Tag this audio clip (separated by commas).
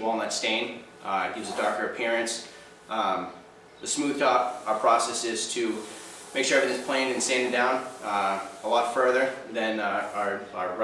Speech